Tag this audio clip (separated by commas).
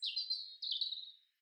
Animal, Bird, Wild animals